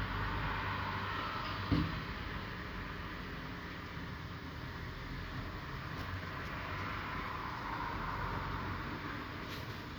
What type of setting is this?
street